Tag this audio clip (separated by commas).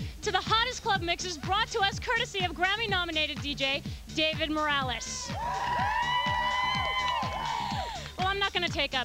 Music, Speech